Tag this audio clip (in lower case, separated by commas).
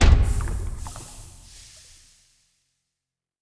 liquid